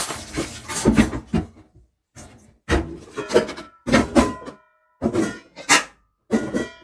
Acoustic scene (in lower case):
kitchen